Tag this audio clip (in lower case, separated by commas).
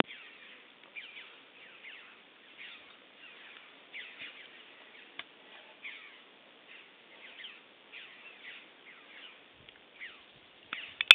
bird vocalization, animal, wild animals, bird